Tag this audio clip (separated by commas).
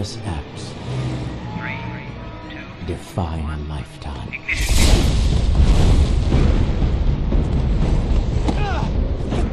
Speech, Eruption, Music